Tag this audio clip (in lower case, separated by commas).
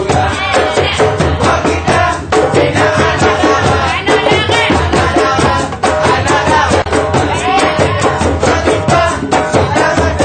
music, percussion